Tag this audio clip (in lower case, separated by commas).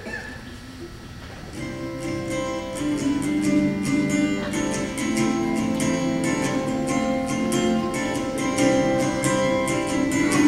musical instrument, guitar, music, plucked string instrument